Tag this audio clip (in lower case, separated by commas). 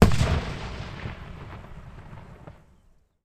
fireworks, explosion